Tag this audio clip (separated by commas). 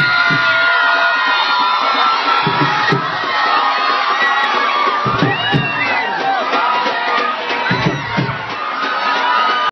Music